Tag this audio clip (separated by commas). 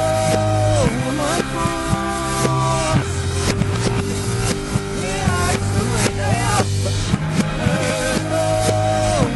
Music